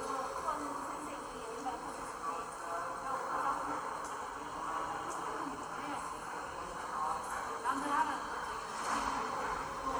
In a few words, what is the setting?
subway station